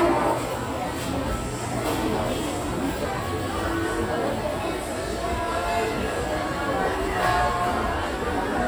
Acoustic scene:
crowded indoor space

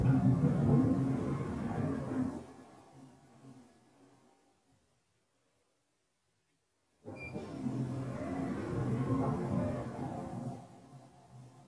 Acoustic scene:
elevator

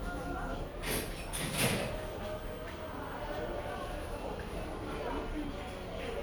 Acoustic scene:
crowded indoor space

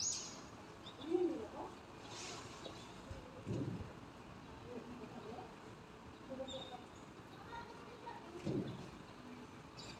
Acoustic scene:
residential area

